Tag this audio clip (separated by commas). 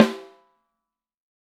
Percussion, Musical instrument, Snare drum, Drum, Music